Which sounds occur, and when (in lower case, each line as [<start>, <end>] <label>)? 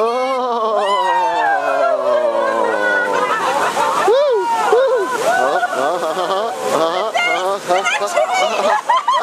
[0.00, 9.22] background noise
[0.00, 9.22] crowd
[1.63, 9.22] surf
[4.11, 5.63] whoop
[5.21, 8.77] human sounds
[7.74, 8.77] female speech